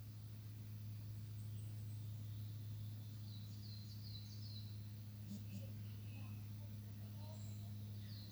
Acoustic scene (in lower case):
park